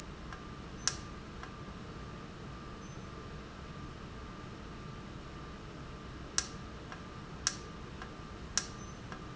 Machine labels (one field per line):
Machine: valve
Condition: normal